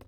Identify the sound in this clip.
plastic object falling